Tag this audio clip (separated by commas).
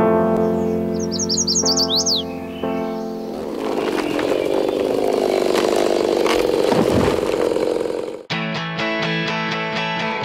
Music